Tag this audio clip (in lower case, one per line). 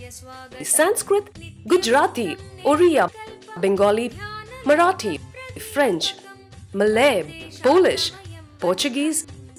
speech
music